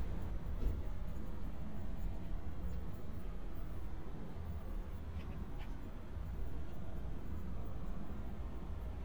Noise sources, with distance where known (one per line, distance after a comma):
background noise